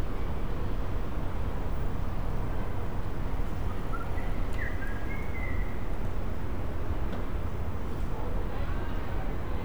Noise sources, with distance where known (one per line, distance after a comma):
unidentified human voice, far